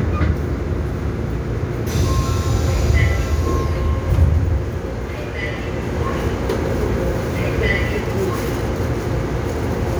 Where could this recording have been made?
on a subway train